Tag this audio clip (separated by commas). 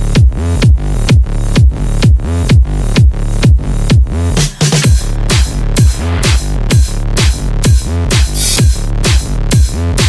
Music